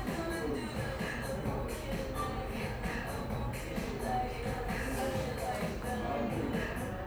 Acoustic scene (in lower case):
cafe